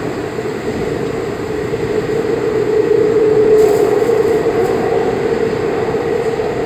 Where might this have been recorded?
on a subway train